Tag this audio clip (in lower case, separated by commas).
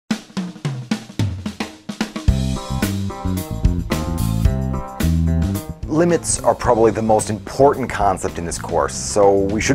drum kit, snare drum, drum, percussion, hi-hat, rimshot, bass drum, cymbal